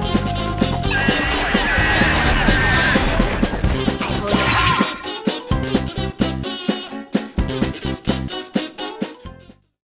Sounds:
Music

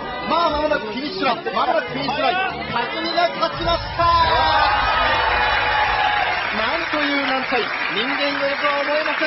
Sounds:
Speech

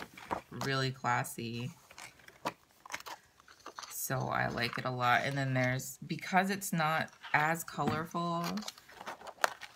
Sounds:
inside a small room, Speech

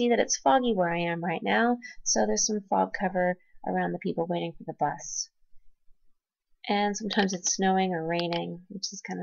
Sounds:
Speech

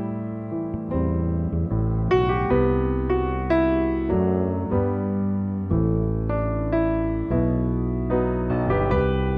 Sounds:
Music

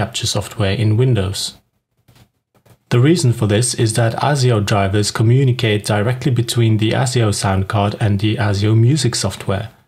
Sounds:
Speech

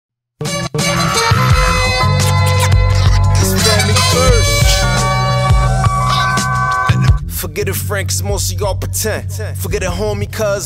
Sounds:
Hip hop music, Music

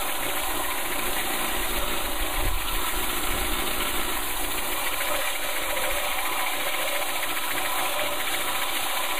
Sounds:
Tools, Wood

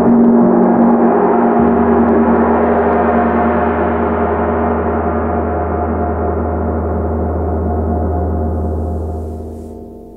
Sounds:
playing gong

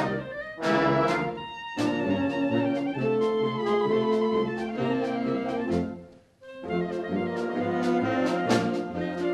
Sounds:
Clarinet, Musical instrument, woodwind instrument, Music

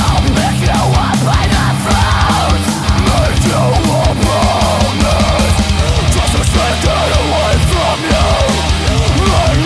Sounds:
Music

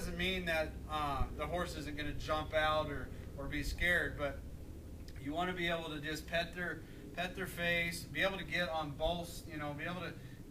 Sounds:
Speech

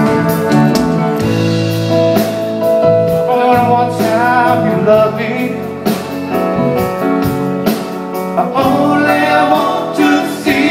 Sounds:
Bluegrass, Music, Country

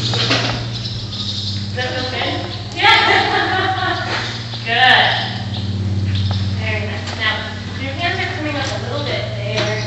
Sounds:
Clip-clop, Speech

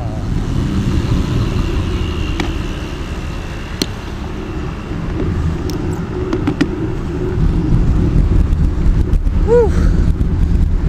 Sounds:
Bicycle

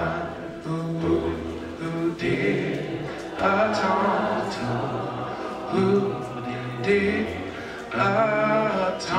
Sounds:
Male singing, Choir

